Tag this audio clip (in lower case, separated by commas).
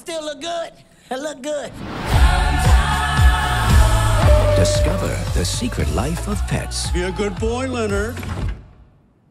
disco